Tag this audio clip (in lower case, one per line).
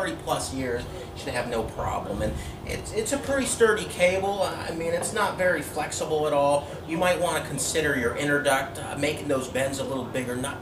speech